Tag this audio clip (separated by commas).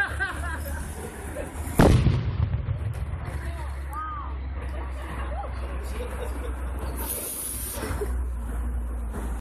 pop, Speech